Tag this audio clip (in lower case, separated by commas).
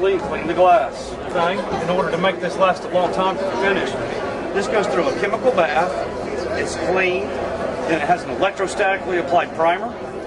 speech